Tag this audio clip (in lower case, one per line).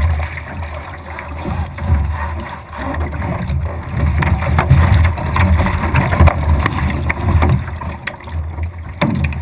water vehicle